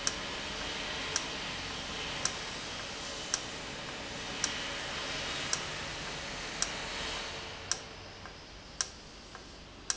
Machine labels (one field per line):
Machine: valve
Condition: normal